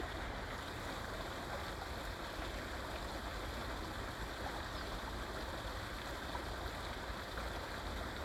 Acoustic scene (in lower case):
park